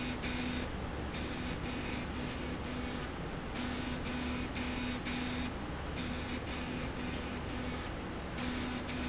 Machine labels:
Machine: slide rail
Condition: abnormal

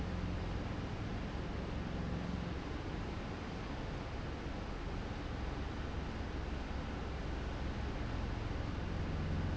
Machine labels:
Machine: fan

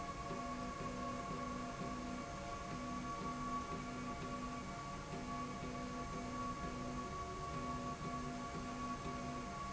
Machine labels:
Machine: slide rail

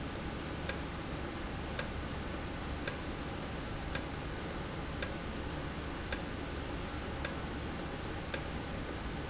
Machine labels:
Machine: valve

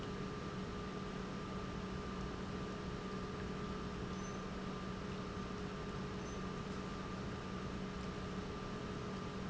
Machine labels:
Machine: pump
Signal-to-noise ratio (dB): 0 dB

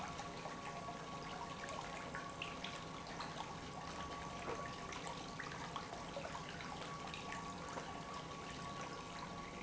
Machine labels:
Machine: pump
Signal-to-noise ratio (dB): 6 dB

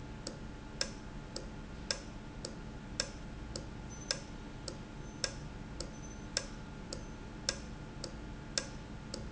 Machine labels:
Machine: valve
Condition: normal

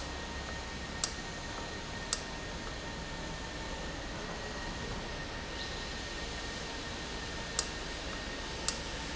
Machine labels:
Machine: valve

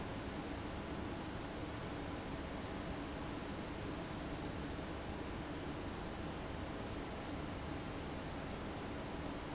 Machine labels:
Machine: fan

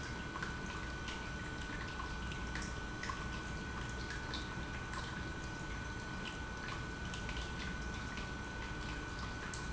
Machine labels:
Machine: pump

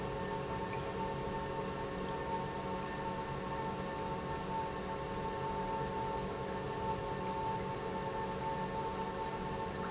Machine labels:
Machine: pump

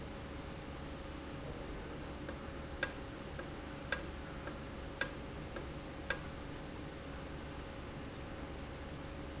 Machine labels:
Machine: valve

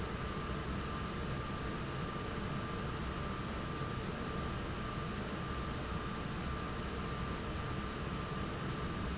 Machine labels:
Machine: fan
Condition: normal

